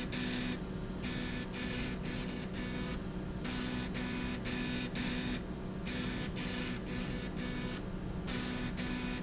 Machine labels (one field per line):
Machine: slide rail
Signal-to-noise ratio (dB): -6 dB